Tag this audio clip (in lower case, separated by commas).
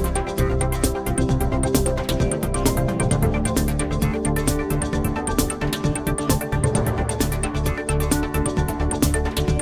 music